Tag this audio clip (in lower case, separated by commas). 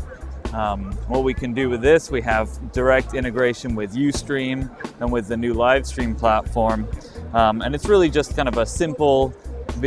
speech, music